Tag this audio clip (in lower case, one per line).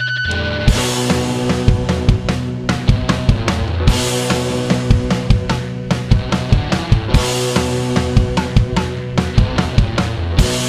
music